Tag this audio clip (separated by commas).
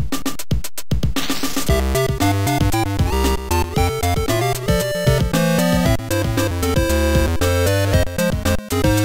Video game music, Music, Background music, Folk music